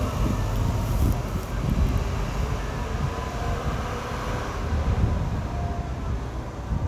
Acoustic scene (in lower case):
street